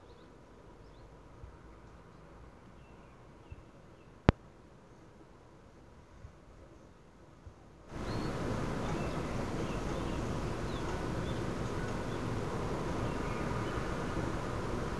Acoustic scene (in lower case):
park